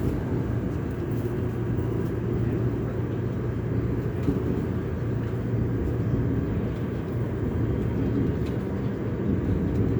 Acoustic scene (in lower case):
subway train